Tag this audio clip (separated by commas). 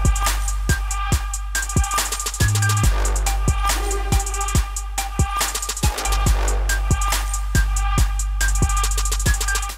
Music